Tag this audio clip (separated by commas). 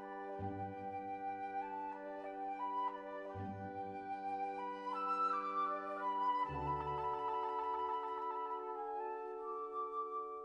Music